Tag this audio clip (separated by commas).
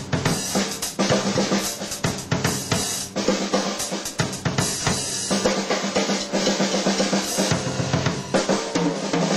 Drum kit, Drum, Music, Hi-hat, Bass drum, Snare drum, Musical instrument